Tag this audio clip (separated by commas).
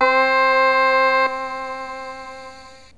Music, Musical instrument, Keyboard (musical)